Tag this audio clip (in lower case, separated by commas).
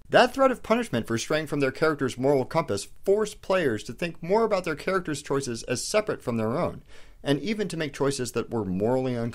speech